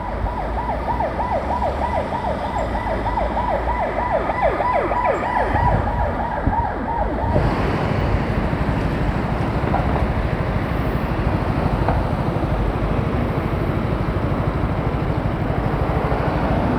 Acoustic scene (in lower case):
residential area